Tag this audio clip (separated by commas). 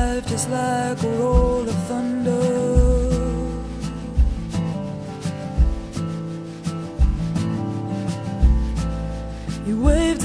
Music